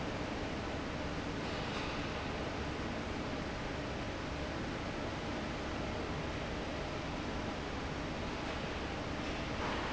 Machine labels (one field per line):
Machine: fan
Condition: normal